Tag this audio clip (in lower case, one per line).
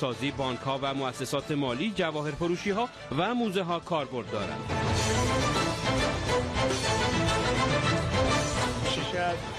music
speech